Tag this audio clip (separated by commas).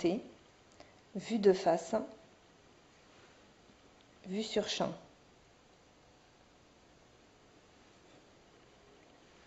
Speech